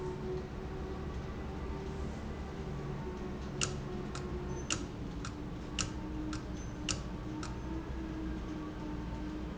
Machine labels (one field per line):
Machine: valve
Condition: abnormal